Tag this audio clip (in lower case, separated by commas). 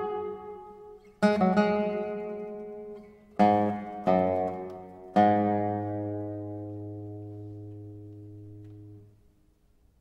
musical instrument, music, guitar